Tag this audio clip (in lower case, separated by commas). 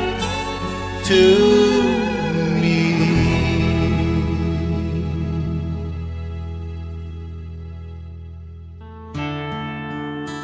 music